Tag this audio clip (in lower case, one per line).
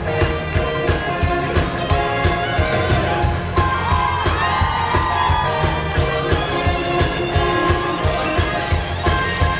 whoop
music